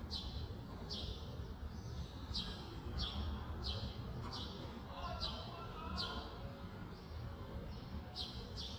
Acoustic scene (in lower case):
residential area